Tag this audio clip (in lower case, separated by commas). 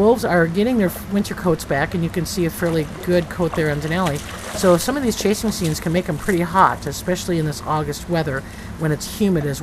speech